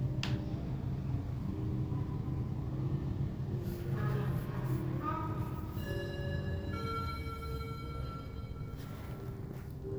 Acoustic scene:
elevator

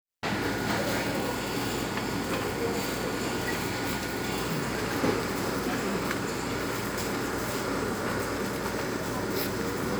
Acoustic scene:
cafe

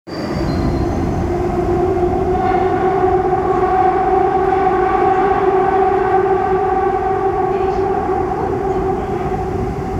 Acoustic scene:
subway train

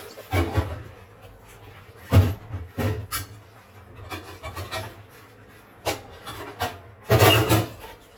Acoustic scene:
kitchen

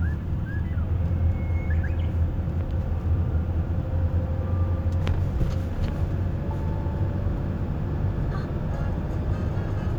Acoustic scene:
car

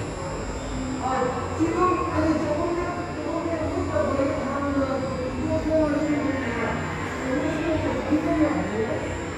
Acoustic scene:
subway station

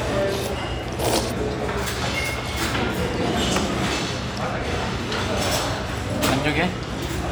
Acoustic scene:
restaurant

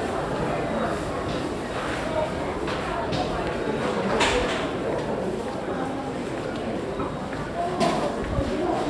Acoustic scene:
subway station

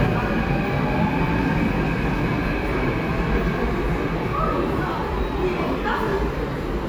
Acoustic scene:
subway station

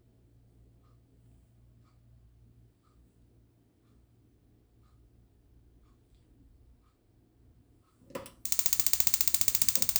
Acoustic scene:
kitchen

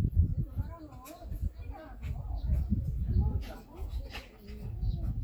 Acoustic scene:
park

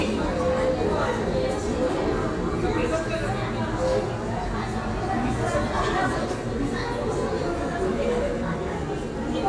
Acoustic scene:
crowded indoor space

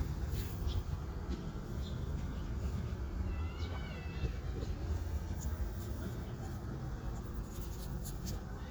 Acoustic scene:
residential area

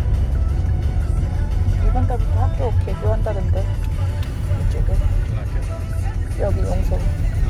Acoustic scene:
car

